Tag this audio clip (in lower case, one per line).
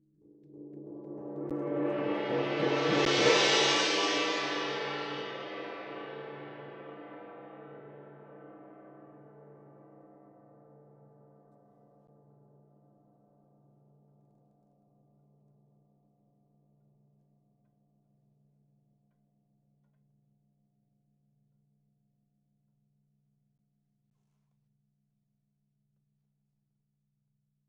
music
gong
percussion
musical instrument